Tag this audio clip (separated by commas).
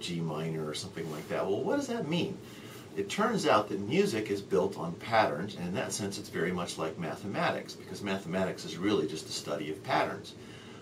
Speech